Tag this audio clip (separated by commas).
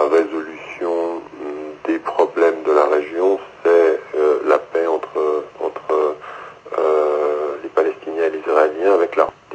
Speech, Radio